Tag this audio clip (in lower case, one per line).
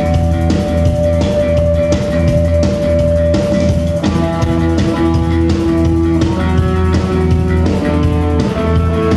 music